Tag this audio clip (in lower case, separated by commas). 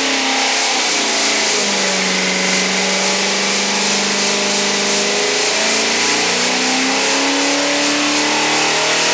engine, medium engine (mid frequency), revving, idling